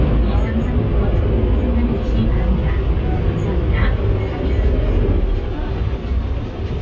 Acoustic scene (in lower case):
bus